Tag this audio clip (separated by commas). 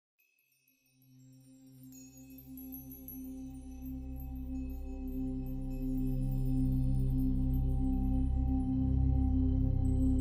Music